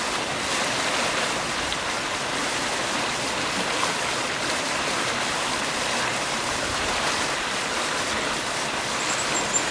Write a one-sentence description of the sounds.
Water is rushing by